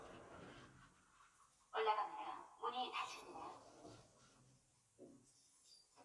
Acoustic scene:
elevator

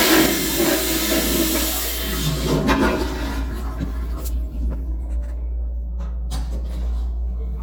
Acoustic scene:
restroom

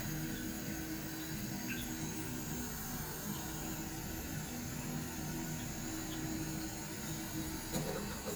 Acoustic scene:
restroom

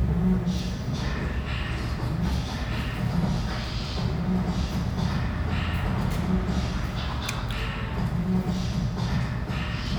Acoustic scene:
restaurant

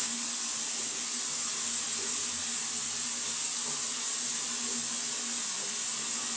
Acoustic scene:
restroom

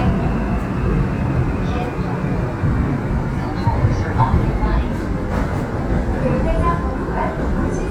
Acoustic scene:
subway train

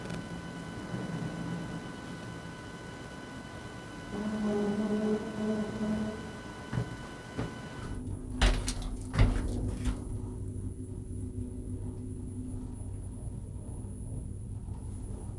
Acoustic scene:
elevator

